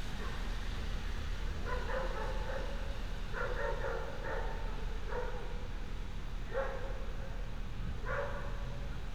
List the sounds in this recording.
dog barking or whining